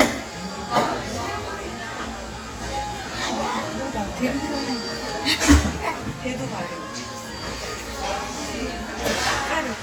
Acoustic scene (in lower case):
cafe